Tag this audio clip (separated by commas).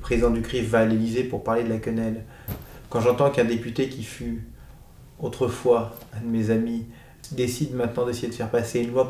Speech